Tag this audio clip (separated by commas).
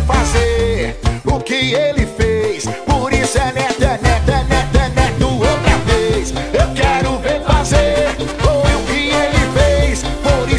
Music